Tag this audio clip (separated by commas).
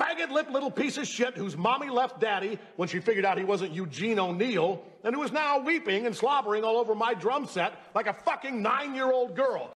Speech